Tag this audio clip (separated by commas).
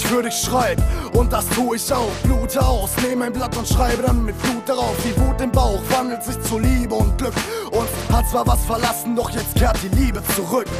Music